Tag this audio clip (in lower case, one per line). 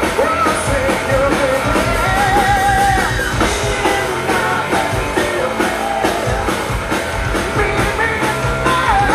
drum kit
drum
rock and roll
musical instrument
music
singing
inside a large room or hall